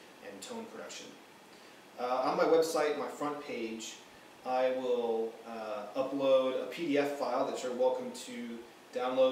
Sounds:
speech

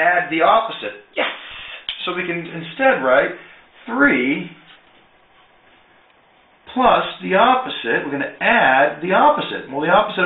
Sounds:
speech

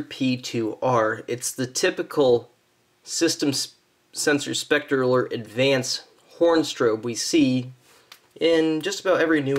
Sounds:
speech

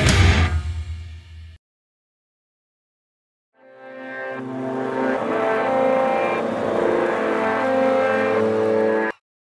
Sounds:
heavy metal
music

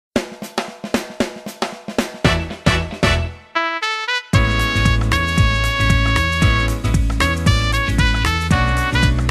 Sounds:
drum roll
snare drum

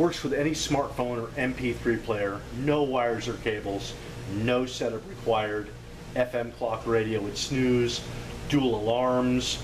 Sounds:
speech

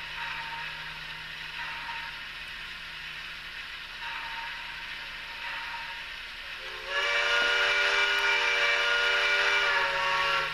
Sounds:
train whistle

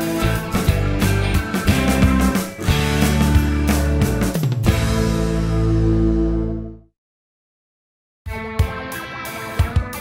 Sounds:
music

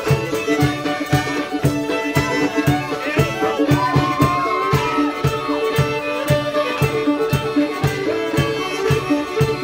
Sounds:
music
violin
musical instrument

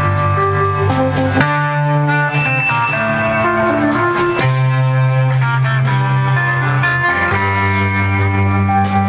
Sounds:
music

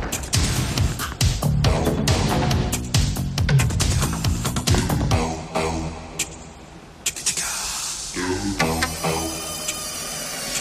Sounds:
music

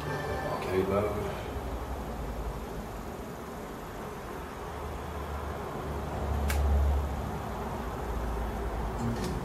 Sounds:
speech

